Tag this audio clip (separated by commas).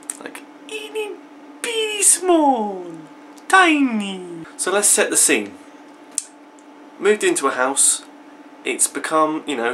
Speech